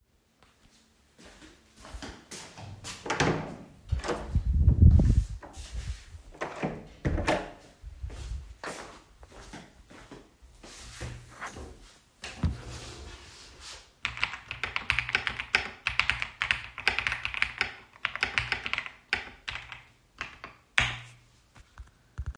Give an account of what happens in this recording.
I walked to the door of my room, opened it, went to the other side and closed it. Then I walked to my desk, I sat on my chair and then I started typing on my keyboard.